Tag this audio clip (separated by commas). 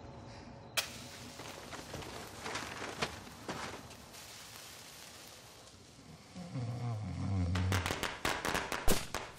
lighting firecrackers